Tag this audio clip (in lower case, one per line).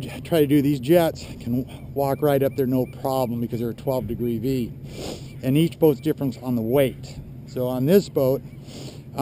speech